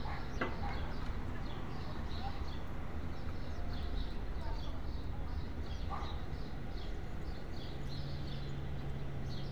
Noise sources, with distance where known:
dog barking or whining, far

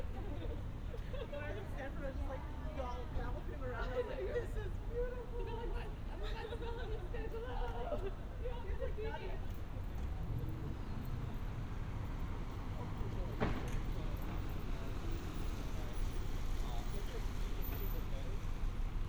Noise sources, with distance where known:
person or small group talking

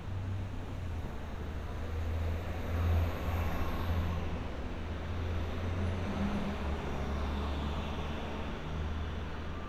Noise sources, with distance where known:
medium-sounding engine

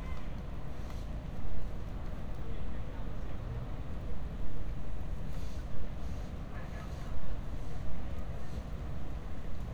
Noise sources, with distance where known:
engine of unclear size, far
unidentified human voice, far

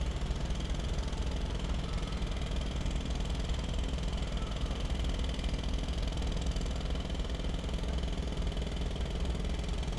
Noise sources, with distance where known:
jackhammer

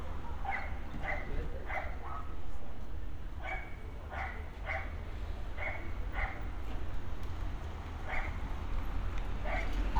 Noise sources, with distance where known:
dog barking or whining, near

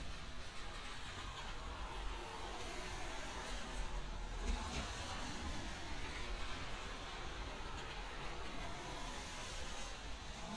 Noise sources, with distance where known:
medium-sounding engine, near

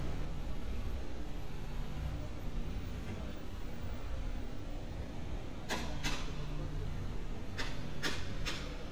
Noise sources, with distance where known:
non-machinery impact, near

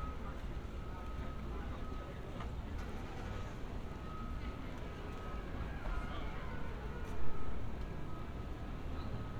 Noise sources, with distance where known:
reverse beeper, far
person or small group talking, far

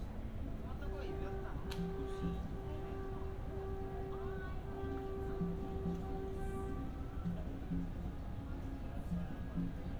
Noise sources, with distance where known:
unidentified alert signal, far
music from an unclear source, near
person or small group talking, near

